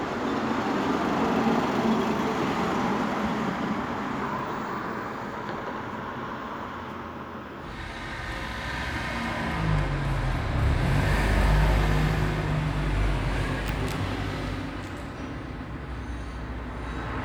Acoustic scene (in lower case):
street